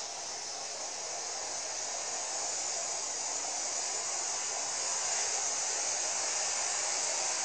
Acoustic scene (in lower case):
street